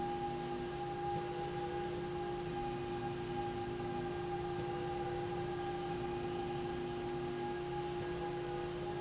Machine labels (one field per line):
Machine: slide rail